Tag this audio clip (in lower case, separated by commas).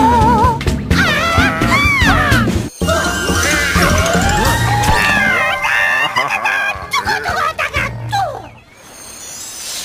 music